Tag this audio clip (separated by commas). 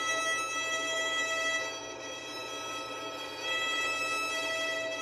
Music, Bowed string instrument, Musical instrument